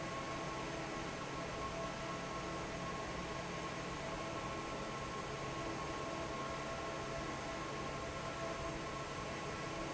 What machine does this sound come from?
fan